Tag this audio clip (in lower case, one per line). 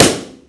explosion